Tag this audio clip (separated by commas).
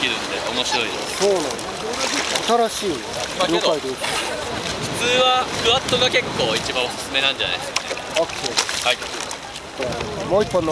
Speech